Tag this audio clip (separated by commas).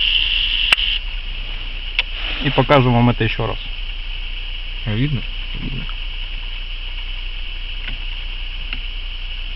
Speech